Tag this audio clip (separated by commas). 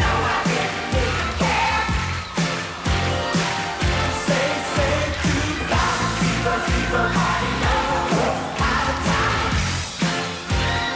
Music